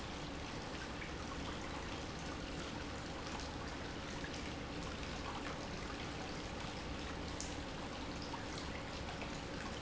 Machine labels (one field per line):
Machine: pump